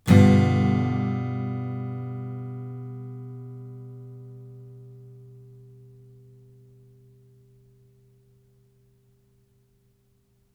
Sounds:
Music, Guitar, Plucked string instrument, Musical instrument, Strum

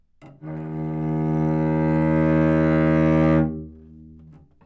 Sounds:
Musical instrument, Music, Bowed string instrument

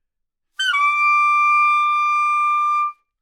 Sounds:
Wind instrument, Music, Musical instrument

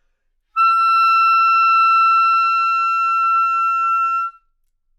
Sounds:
woodwind instrument, Music, Musical instrument

